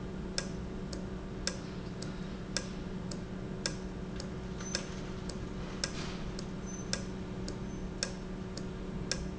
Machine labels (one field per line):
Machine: valve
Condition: normal